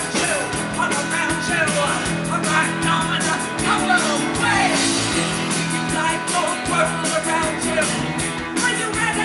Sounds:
Rock and roll, Music

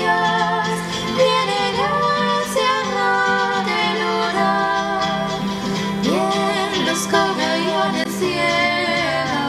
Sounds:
Music

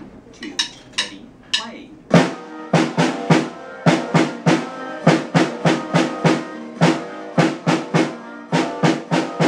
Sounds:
playing snare drum

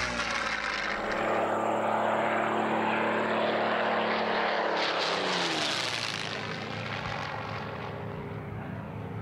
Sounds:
airplane flyby

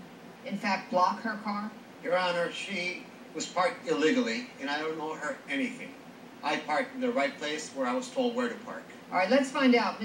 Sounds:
Speech

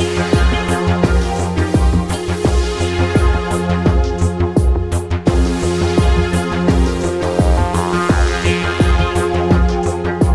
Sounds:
Music, Sampler

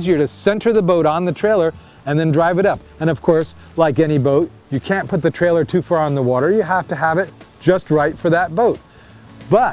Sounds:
Speech, Music

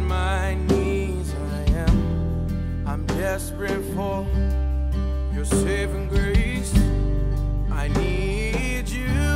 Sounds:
Music

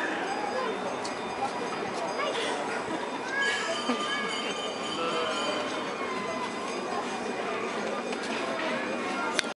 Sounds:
Speech, Sheep

